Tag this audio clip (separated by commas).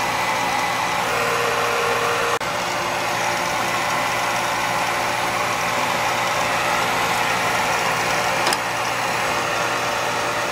inside a large room or hall